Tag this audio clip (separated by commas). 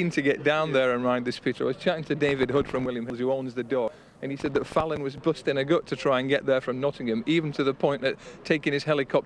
Speech